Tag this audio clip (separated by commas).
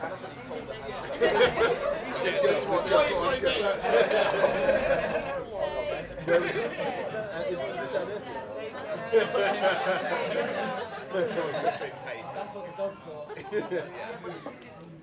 Human voice, Laughter